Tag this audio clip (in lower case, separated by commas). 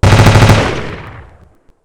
gunshot, explosion